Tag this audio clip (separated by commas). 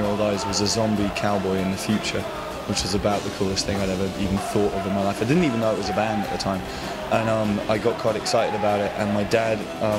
Music, Speech